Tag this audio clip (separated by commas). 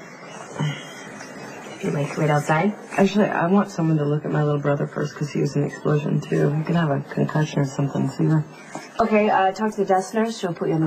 Speech